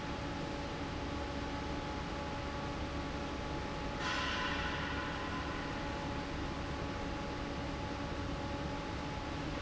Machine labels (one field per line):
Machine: fan